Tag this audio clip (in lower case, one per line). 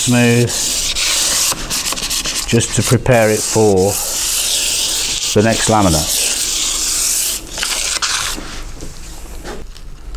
speech